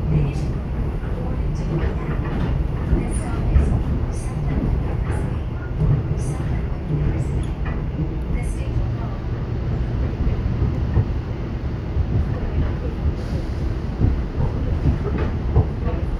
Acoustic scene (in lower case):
subway train